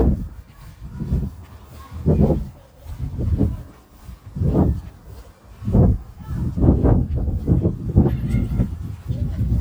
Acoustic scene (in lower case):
park